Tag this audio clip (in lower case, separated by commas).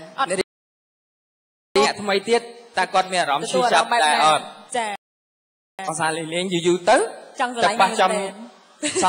speech